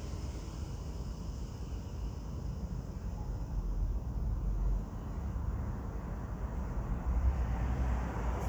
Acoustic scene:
residential area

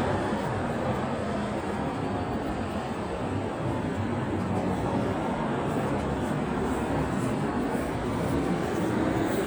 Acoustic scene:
street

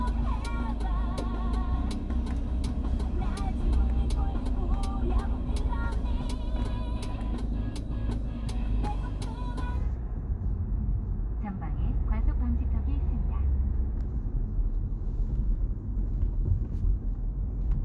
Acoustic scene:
car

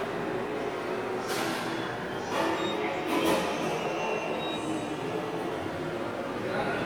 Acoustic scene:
subway station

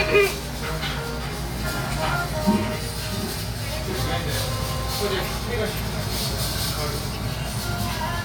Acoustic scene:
restaurant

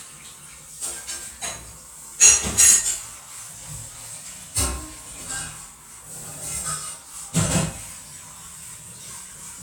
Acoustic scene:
kitchen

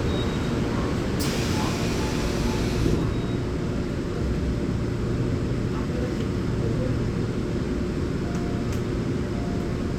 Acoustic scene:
subway train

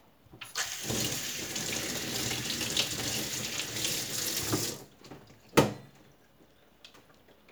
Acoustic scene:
kitchen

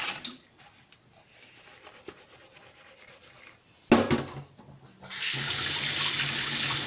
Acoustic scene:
kitchen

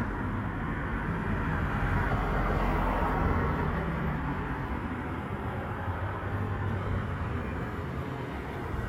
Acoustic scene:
street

